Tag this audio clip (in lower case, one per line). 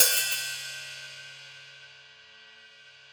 musical instrument
percussion
music
hi-hat
cymbal